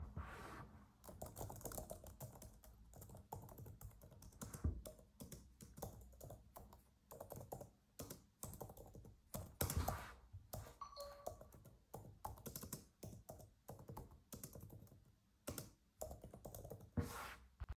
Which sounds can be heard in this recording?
keyboard typing, phone ringing